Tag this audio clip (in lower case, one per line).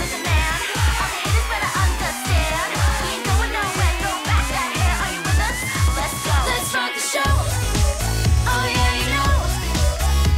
music